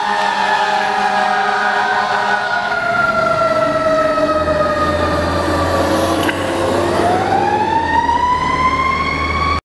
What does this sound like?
Sirens as emergency fire vehicles drive off